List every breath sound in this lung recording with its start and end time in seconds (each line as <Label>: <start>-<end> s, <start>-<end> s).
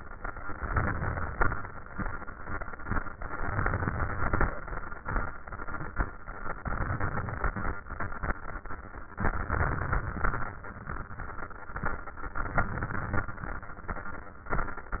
Inhalation: 0.55-1.50 s, 3.50-4.46 s, 6.64-7.76 s, 9.19-10.49 s, 12.39-13.30 s